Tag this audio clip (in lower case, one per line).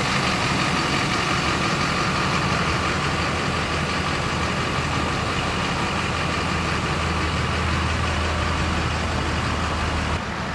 vehicle
truck